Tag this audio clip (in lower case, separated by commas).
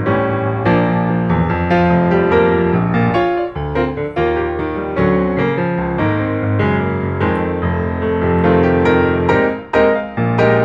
music